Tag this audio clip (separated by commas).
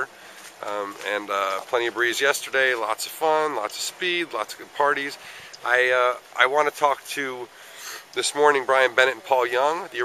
Speech